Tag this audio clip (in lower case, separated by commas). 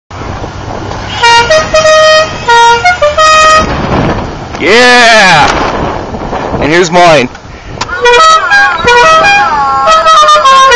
car horn, vehicle